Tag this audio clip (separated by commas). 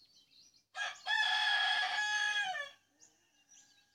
livestock, Bird, Wild animals, Animal, Chicken, Fowl